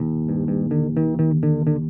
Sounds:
Musical instrument, Music, Plucked string instrument, Bass guitar, Guitar

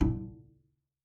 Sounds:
Music, Musical instrument, Bowed string instrument

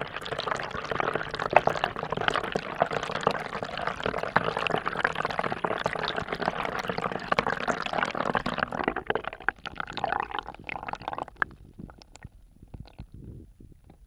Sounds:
Sink (filling or washing), home sounds

